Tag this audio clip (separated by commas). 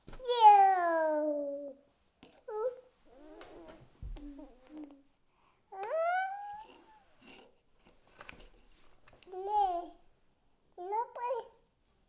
Speech, Human voice